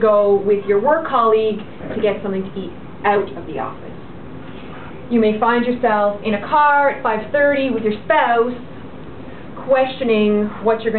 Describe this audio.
A woman is speaking giving a speech